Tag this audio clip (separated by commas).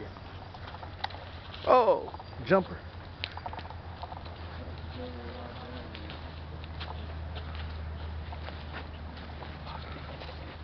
Speech